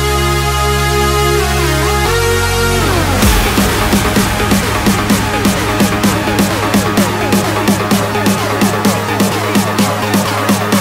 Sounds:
Music

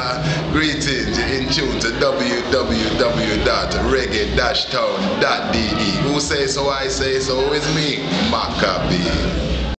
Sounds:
Speech

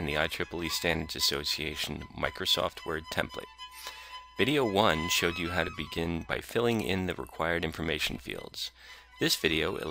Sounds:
Speech, Music

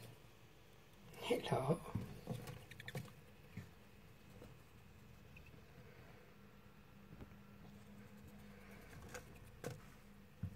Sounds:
mouse squeaking

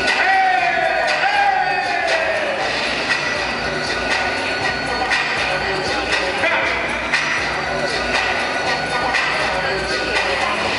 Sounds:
Speech, Music

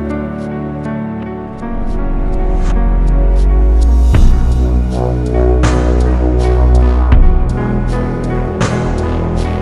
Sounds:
Electronic music, Dubstep, Music

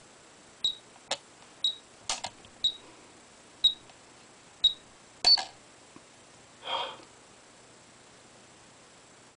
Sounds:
Tick-tock

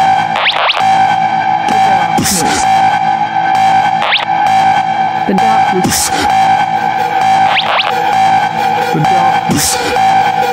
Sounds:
Speech, Music

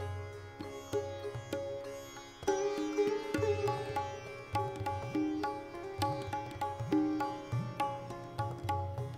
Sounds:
Music, Sitar, Bowed string instrument, Musical instrument

